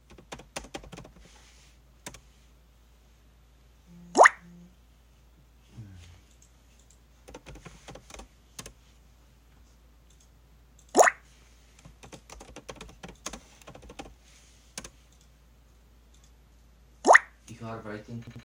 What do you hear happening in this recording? While I was typing and sending messages to my friends, he was texting me back, my phone got notification.